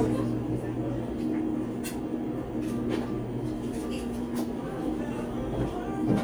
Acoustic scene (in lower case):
cafe